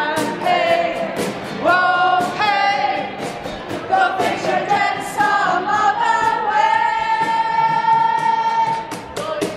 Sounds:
music

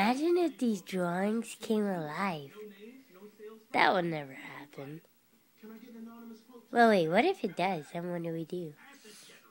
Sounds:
speech

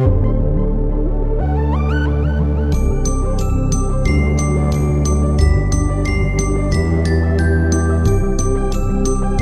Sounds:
background music

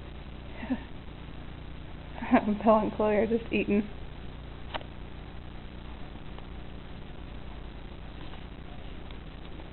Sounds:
speech

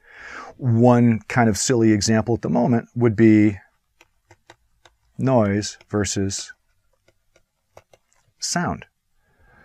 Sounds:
writing

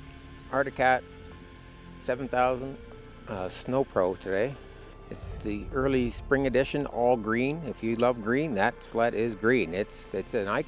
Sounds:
speech
music

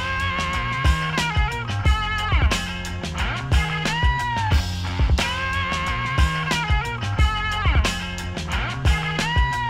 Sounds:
music

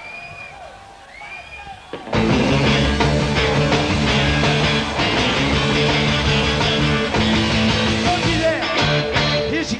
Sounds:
punk rock
singing

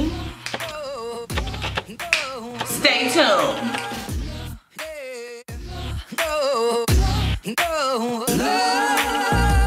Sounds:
speech
hip hop music
music

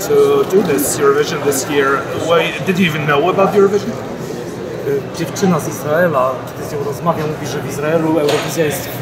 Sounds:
speech

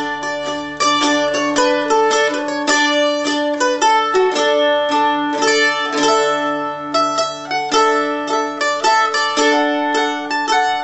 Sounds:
music

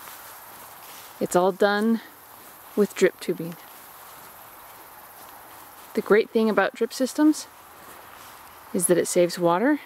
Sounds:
speech

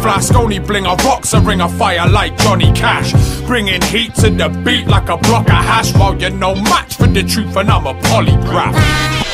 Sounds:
music
sampler

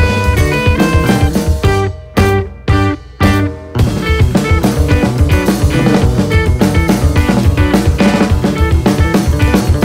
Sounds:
music

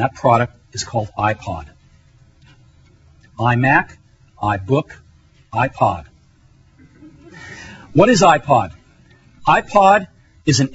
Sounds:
speech

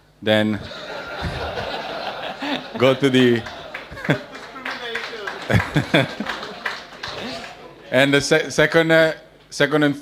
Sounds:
speech

